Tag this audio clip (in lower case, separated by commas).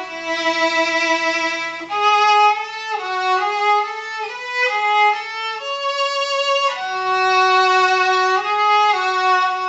musical instrument, violin, music